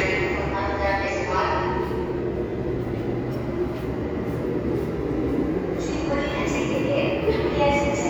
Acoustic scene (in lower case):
subway station